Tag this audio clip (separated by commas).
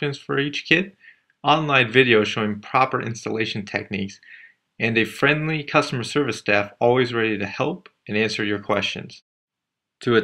Speech